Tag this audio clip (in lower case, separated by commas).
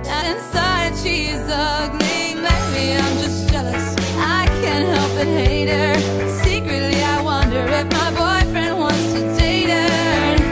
music